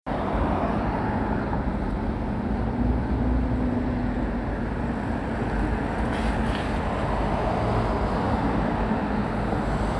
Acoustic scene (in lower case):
residential area